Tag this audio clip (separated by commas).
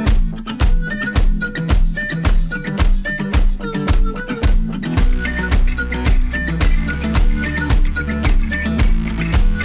Music